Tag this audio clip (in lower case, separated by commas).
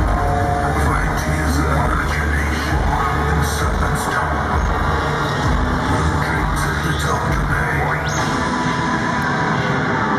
speech, music